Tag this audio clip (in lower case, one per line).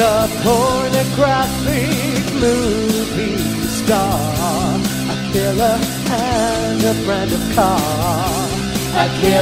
music